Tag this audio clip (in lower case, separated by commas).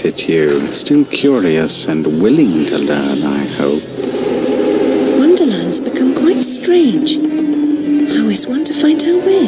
music, speech